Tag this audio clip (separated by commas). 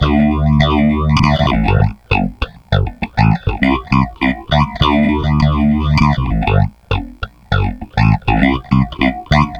Music, Guitar, Bass guitar, Musical instrument, Plucked string instrument